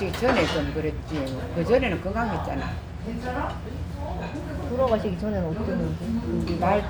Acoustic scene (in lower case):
restaurant